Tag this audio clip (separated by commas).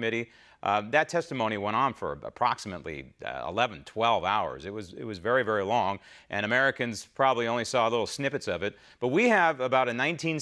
Speech